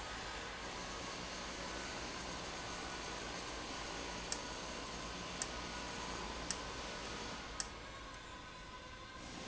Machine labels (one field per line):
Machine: valve